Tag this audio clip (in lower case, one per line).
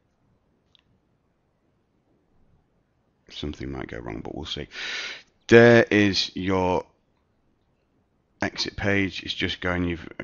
speech